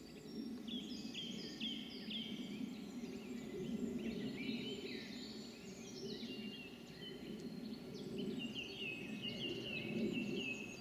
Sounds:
animal
environmental noise

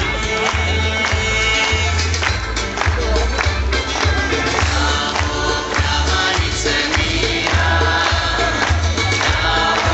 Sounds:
male singing
music

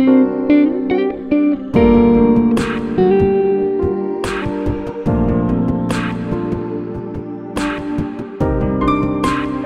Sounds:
jazz
music

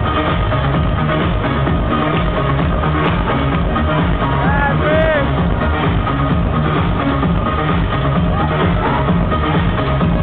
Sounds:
speech
electronica
music

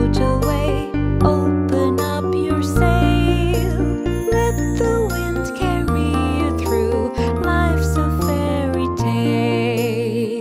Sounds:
music

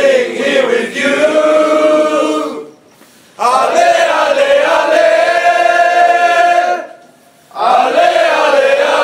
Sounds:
mantra

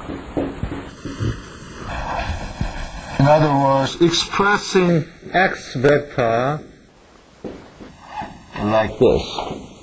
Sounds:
speech

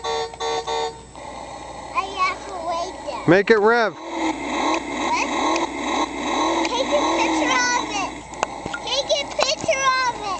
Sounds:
speech
truck

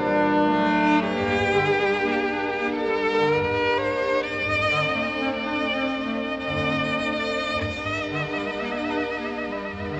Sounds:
violin
orchestra
musical instrument
music

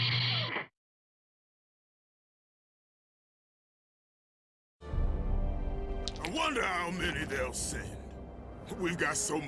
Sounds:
speech
music
silence

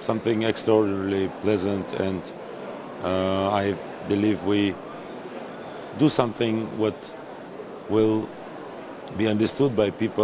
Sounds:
speech

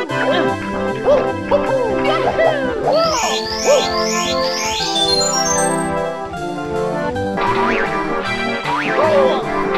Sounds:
music

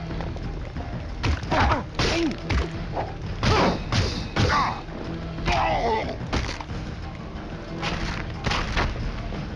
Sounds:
music
outside, urban or man-made
inside a large room or hall

